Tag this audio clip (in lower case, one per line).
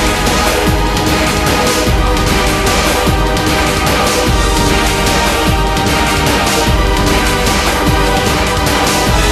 music